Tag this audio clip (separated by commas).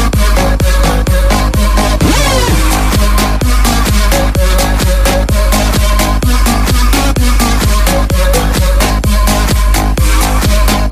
Music